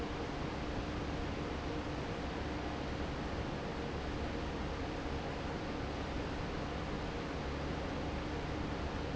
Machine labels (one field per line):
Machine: fan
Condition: normal